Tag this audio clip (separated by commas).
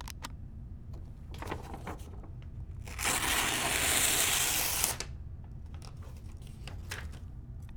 Tearing